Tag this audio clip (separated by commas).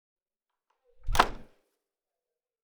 Door, Slam, home sounds